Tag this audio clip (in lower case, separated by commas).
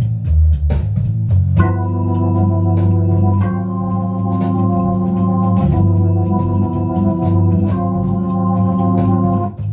playing hammond organ